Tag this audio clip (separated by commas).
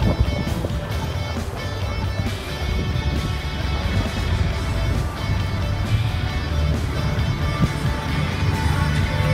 Strum, Guitar, Musical instrument, Electric guitar, Music, Plucked string instrument